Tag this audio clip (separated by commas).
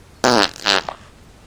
Fart